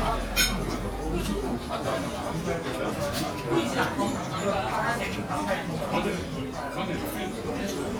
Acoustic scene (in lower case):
crowded indoor space